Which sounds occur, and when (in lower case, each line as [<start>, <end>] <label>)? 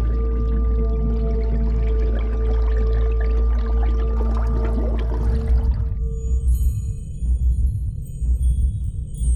[0.00, 9.35] sound effect
[0.00, 9.35] water
[5.95, 9.35] music